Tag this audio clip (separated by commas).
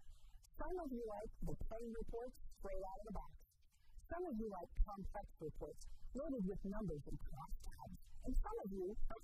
Speech